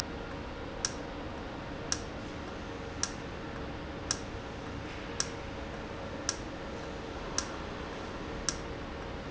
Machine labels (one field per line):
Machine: valve